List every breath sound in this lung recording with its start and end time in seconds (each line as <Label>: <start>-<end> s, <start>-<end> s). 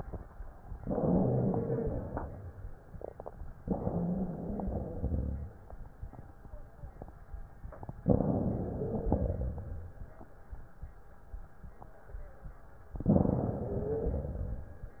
Inhalation: 0.80-2.81 s, 3.61-5.57 s, 8.03-9.98 s, 12.94-14.90 s
Wheeze: 0.80-2.81 s, 3.61-5.57 s, 8.03-9.98 s, 12.94-14.90 s